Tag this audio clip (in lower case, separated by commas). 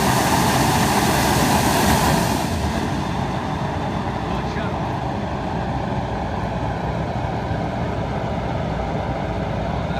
wind, wind noise (microphone)